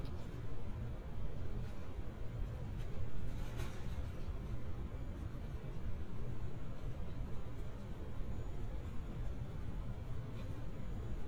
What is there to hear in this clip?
unidentified impact machinery